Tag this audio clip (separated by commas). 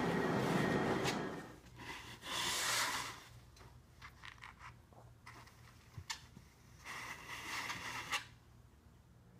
inside a small room